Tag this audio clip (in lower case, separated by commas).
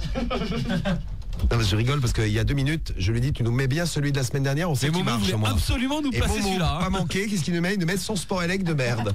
speech